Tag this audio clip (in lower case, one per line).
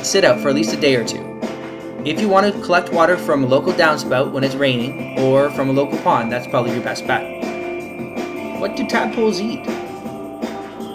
music
speech